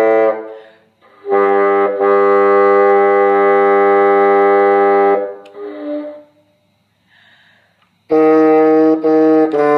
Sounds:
playing bassoon

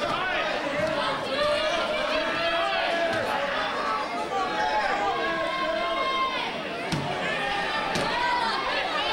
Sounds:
speech

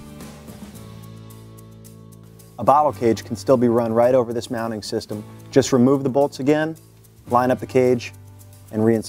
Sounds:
music, speech

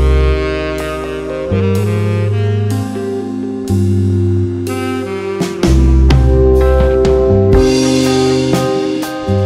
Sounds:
jazz

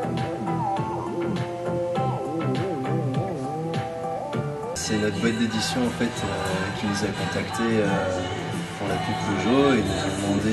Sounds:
speech, music

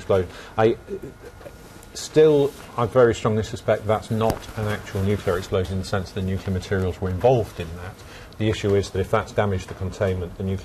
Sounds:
speech

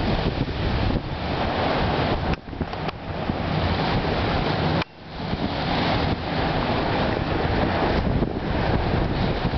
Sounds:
ocean, surf, ocean burbling

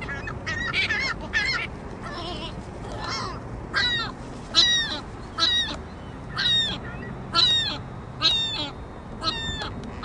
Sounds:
bird squawking

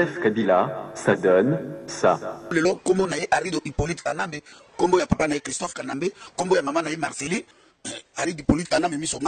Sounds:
speech

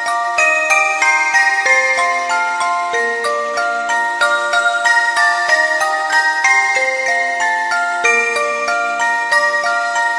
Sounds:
music, background music

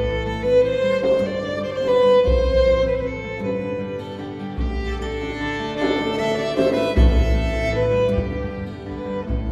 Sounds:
bowed string instrument, music

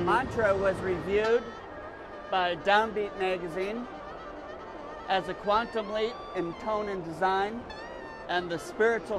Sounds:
music, speech

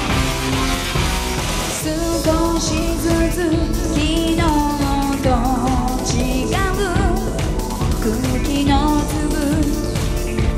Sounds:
music

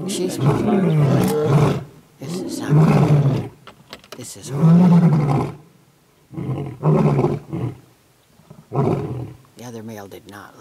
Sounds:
roaring cats, speech, animal, wild animals

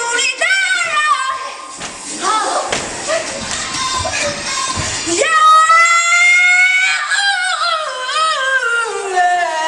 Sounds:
music, inside a small room

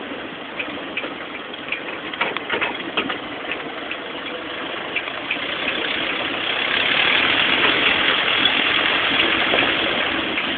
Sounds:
vehicle

